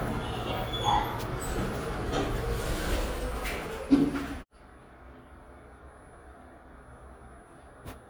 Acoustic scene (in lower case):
elevator